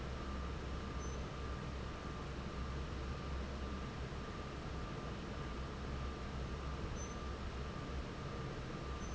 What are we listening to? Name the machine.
fan